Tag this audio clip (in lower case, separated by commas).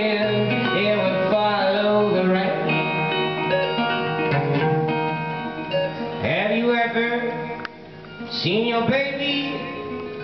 music